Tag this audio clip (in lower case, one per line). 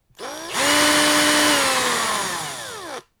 tools